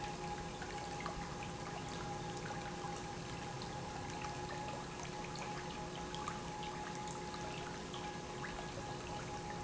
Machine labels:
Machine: pump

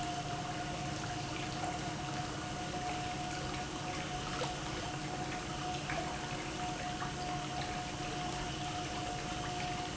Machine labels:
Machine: pump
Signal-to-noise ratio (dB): -6 dB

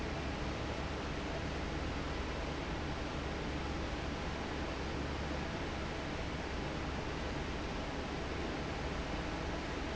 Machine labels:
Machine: fan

